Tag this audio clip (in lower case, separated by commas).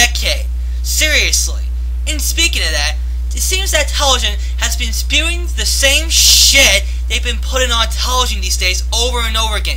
television, speech